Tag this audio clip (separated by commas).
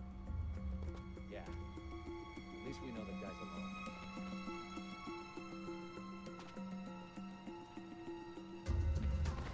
Music, Speech